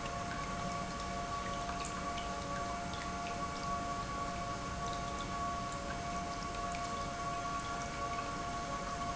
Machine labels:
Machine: pump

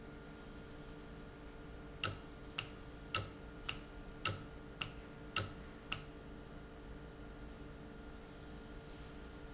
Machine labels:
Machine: valve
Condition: normal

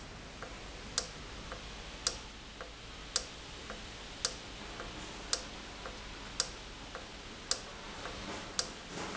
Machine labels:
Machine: valve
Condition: normal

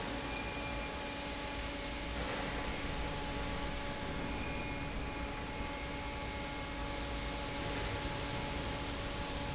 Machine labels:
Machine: fan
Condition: normal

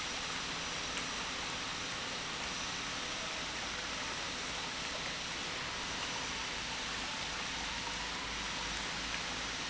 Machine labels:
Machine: pump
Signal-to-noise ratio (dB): -6 dB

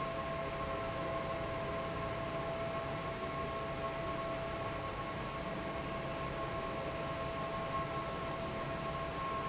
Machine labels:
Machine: fan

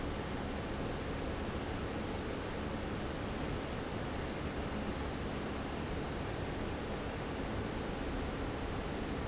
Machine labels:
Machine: fan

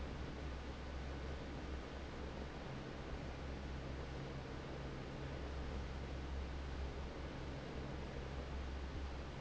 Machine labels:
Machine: fan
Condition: normal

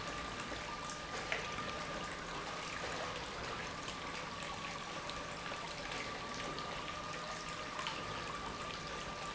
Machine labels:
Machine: pump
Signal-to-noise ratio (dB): 0 dB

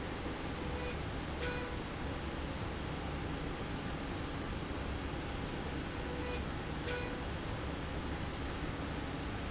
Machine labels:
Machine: slide rail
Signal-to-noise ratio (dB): -6 dB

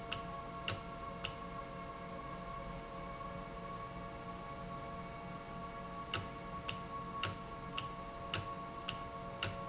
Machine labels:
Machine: valve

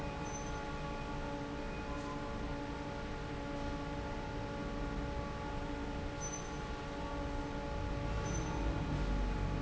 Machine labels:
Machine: fan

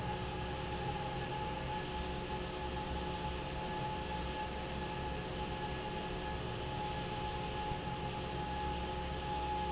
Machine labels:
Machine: fan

